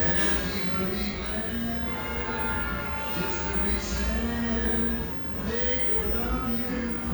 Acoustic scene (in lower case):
restaurant